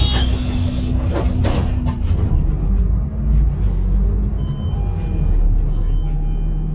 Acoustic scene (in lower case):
bus